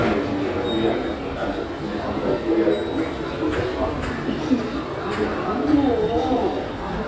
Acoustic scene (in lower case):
subway station